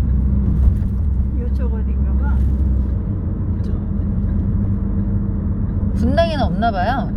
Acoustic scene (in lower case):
car